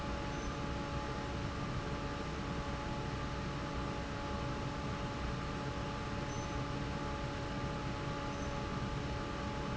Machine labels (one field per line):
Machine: fan